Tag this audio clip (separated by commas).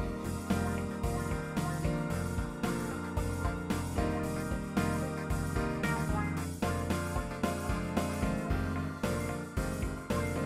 Music